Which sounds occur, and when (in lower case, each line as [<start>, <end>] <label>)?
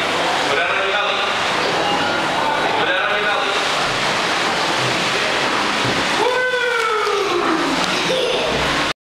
[0.00, 8.94] waterfall
[6.15, 7.72] man speaking
[7.84, 7.93] clicking
[8.09, 8.56] laughter